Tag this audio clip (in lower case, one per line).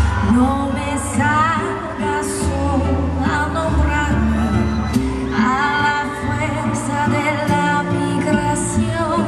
tender music
music